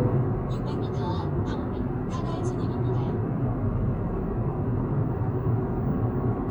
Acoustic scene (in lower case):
car